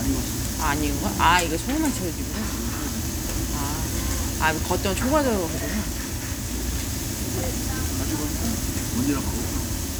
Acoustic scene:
restaurant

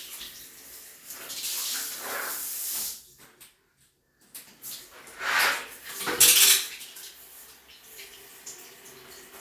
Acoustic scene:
restroom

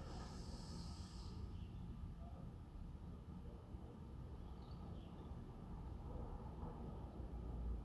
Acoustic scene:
residential area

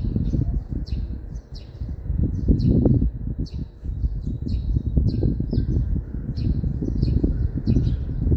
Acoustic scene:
residential area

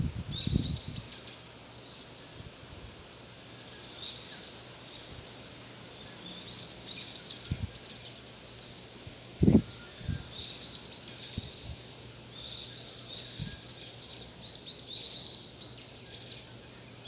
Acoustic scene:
park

